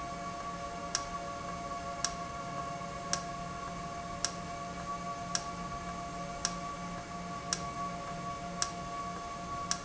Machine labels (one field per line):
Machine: valve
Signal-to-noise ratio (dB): -6 dB